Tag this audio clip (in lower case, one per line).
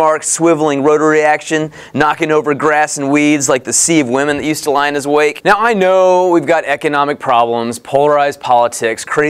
speech